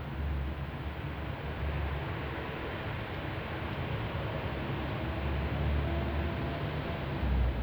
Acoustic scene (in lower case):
residential area